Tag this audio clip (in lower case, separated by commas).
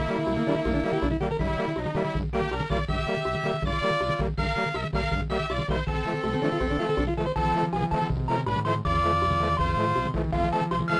video game music